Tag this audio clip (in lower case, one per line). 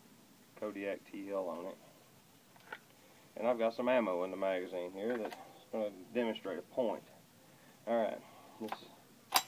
speech